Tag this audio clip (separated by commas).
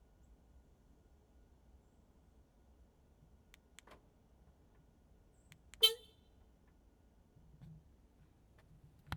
Car, Vehicle, Motor vehicle (road), Alarm